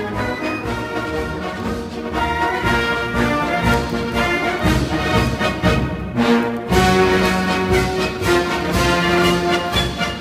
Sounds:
exciting music, music

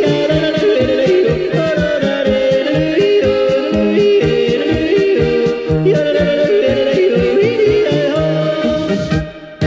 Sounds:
yodelling

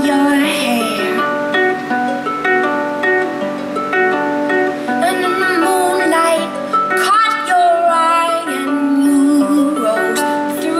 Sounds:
plucked string instrument, music, singing, musical instrument, inside a large room or hall

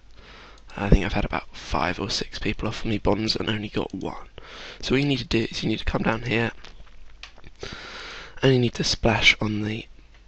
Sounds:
speech

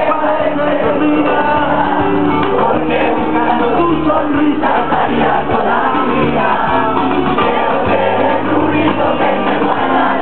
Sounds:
music, exciting music

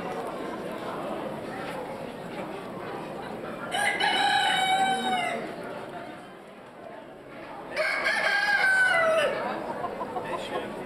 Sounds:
pheasant crowing

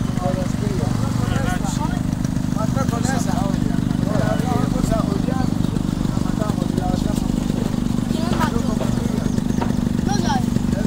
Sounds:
speech, outside, rural or natural

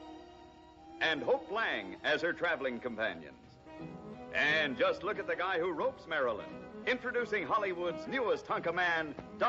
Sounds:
music, speech

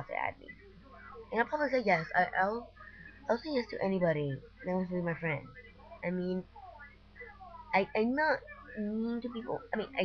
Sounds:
kid speaking, speech

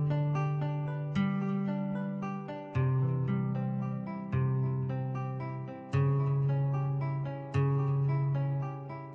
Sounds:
music

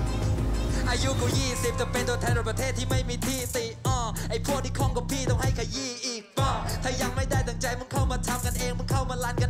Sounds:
rapping

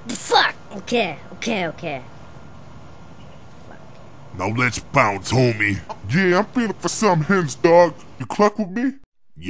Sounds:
speech, outside, rural or natural

